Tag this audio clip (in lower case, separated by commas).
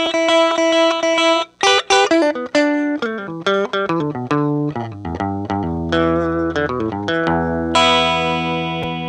plucked string instrument, music, musical instrument, guitar, bass guitar